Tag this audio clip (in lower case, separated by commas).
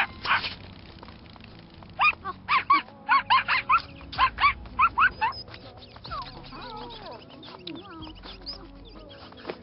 dog, yip, bow-wow, pets, music